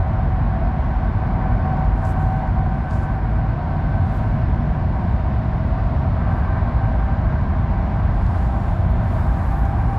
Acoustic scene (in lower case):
car